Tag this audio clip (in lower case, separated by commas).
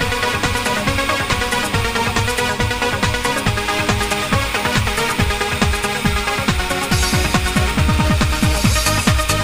trance music, music